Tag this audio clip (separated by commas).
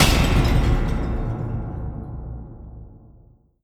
Shatter, Boom, Explosion, Glass